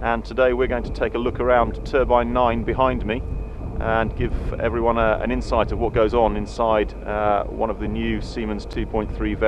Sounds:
wind
wind noise (microphone)

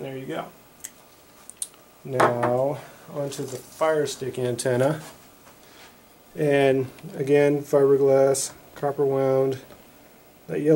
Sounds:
speech

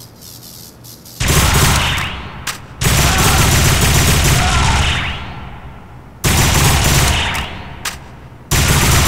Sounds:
sound effect

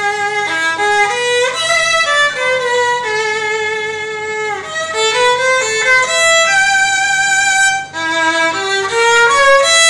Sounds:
musical instrument
music
fiddle

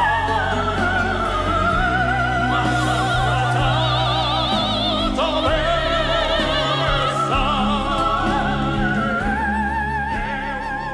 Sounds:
music
opera
classical music

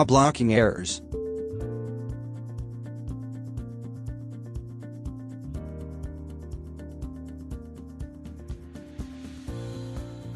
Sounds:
speech
music

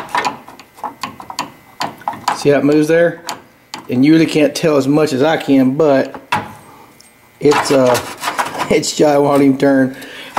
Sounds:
speech

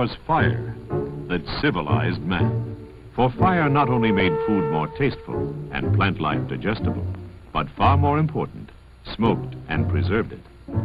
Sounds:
speech
music

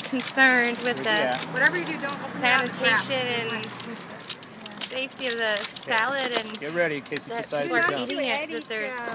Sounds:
speech

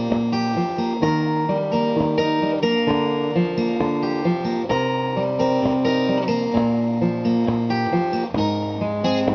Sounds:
music

